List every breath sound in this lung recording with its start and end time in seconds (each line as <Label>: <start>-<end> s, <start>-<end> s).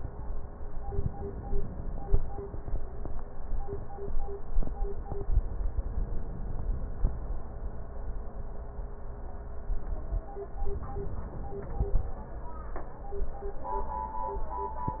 Inhalation: 10.69-12.05 s